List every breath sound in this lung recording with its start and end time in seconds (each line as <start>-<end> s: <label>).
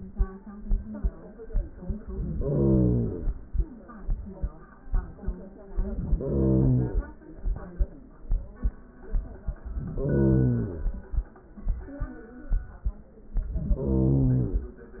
2.24-3.49 s: inhalation
5.81-7.07 s: inhalation
9.72-10.98 s: inhalation
13.38-14.73 s: inhalation